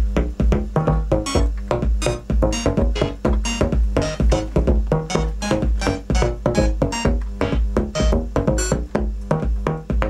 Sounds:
playing synthesizer

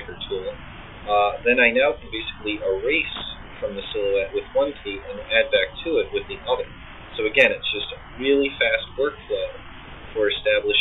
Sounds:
speech, inside a small room

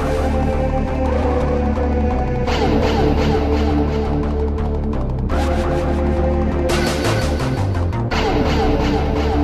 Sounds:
music

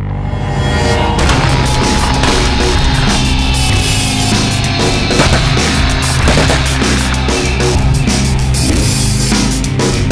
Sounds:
music

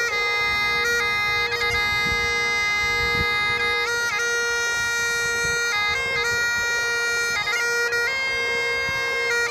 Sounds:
bagpipes, wind instrument

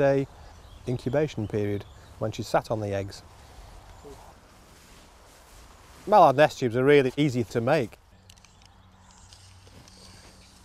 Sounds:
animal, speech

